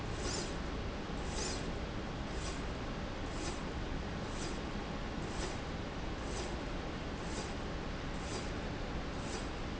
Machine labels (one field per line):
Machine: slide rail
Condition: normal